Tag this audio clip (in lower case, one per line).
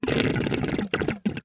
gurgling
water